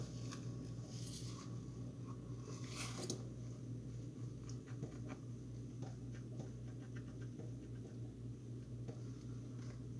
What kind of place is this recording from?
kitchen